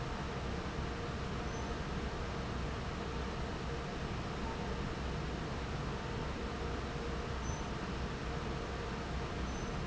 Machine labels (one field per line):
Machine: fan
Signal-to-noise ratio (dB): -6 dB